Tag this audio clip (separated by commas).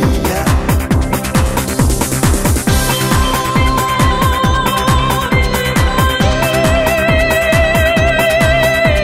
Music